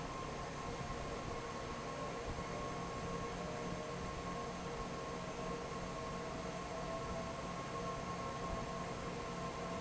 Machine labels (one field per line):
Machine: fan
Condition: normal